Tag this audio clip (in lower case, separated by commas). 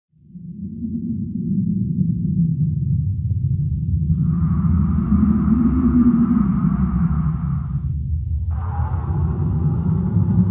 music, outside, rural or natural